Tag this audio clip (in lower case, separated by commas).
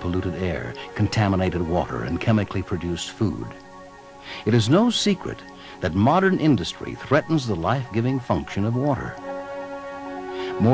speech, music